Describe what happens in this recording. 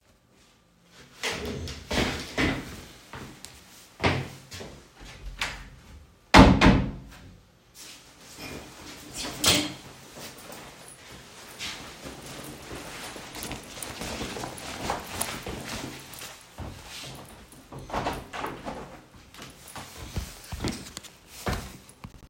I opened the closet, took out the jacket, put on the jacket, opened the door, and left the room.